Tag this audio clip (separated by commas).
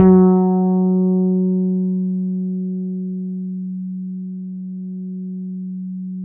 Musical instrument, Bass guitar, Plucked string instrument, Guitar, Music